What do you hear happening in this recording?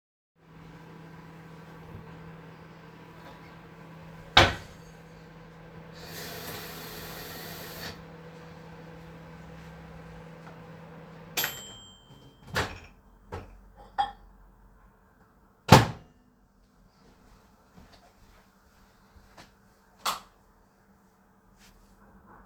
I heated some food in the microwave. In the meantime i took a glass and filled it with water. Then I took the food out and left the room. Before exiting i switched off the lights